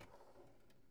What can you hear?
drawer opening